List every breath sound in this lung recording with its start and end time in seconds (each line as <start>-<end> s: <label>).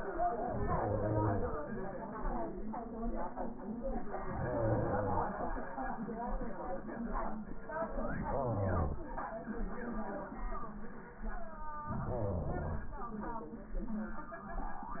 0.53-1.54 s: inhalation
4.31-5.31 s: inhalation
7.94-8.95 s: inhalation
11.88-12.89 s: inhalation